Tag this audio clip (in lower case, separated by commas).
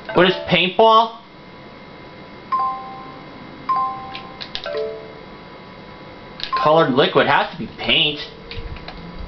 speech, music